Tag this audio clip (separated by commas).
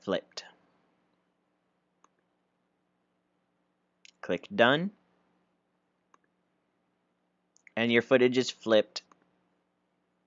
Speech